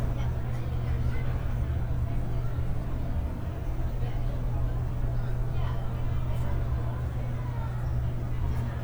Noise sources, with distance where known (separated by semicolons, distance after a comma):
person or small group talking